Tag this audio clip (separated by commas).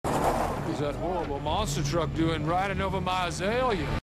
Music, Vehicle, Speech